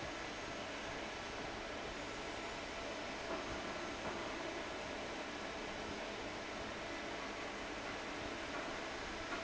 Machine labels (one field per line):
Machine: fan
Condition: abnormal